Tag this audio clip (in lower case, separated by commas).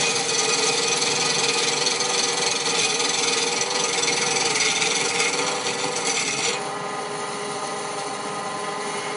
lathe spinning